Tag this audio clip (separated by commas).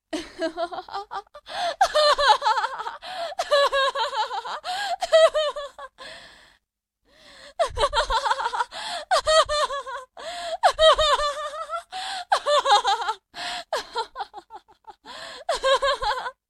Human voice, Laughter